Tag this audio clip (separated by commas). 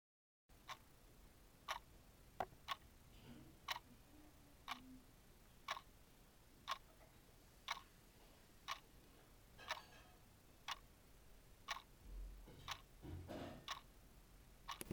Clock, Mechanisms